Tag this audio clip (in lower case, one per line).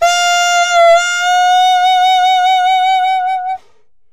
woodwind instrument
music
musical instrument